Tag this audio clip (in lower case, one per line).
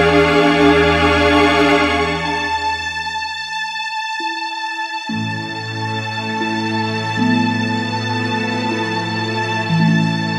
music